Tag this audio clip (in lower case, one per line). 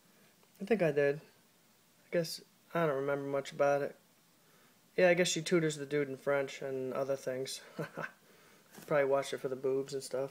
speech